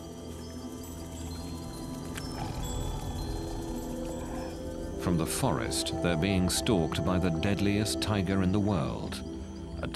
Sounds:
roaring cats
music
speech
animal
wild animals

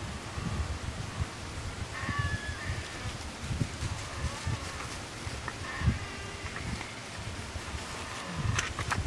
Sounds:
white noise

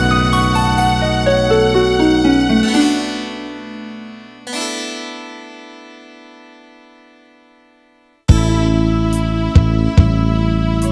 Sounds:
music

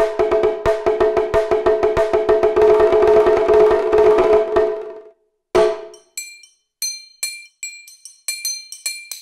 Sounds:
music
percussion
musical instrument

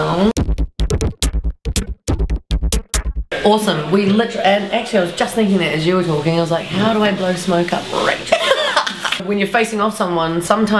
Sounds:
music
speech

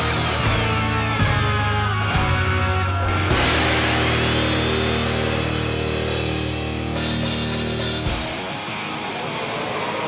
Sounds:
music

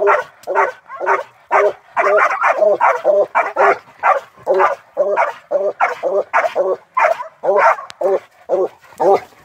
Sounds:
dog baying

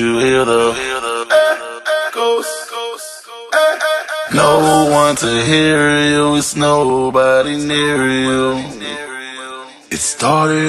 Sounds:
echo

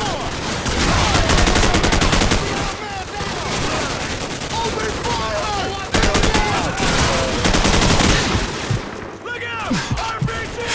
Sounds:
speech

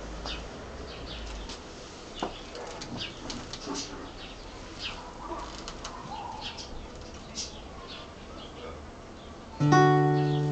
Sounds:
acoustic guitar
music
plucked string instrument
guitar
musical instrument

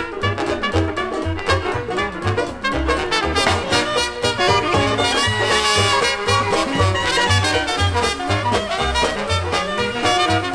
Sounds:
blues
music

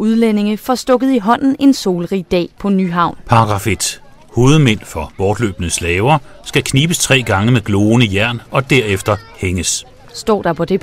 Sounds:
speech

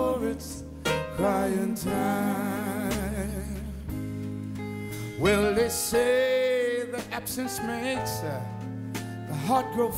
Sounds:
music

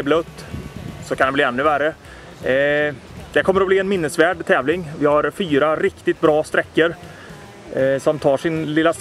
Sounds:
speech

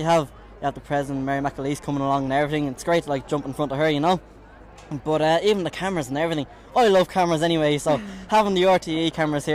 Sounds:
speech

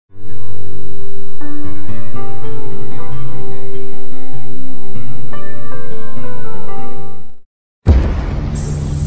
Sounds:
music

